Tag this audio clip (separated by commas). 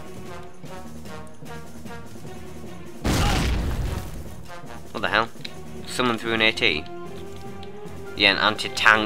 outside, rural or natural, Music, Speech